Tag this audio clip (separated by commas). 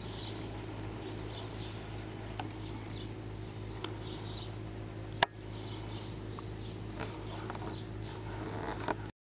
Bird